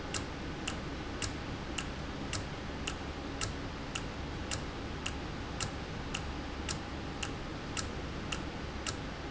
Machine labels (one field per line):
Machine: valve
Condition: normal